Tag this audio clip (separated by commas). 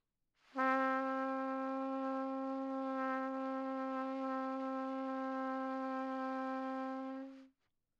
Trumpet, Musical instrument, Brass instrument, Music